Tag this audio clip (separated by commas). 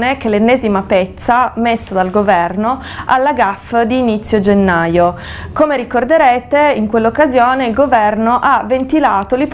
Speech